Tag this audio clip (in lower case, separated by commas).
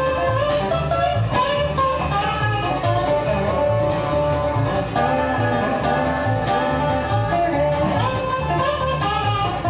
music, fiddle, banjo, bass guitar, country, playing banjo, bowed string instrument, musical instrument